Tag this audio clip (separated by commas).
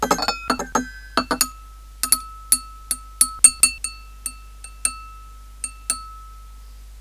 Glass, home sounds, dishes, pots and pans